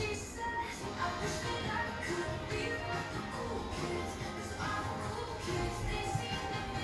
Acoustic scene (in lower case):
cafe